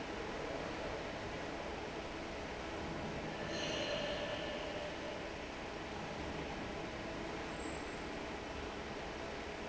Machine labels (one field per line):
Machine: fan